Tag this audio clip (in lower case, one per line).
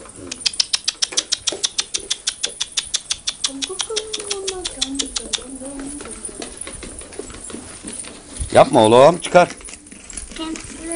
dove
bird
speech